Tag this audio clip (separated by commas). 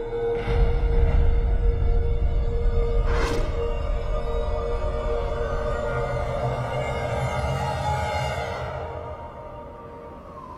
Music